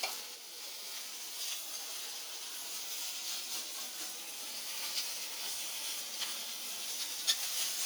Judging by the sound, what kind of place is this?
kitchen